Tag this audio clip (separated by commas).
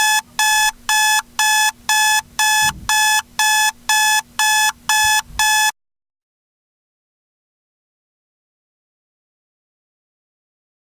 Alarm clock